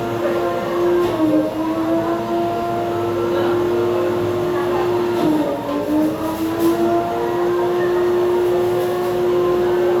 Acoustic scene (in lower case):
cafe